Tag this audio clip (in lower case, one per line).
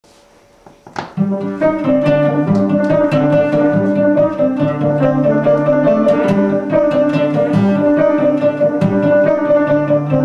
musical instrument
bowed string instrument
music
cello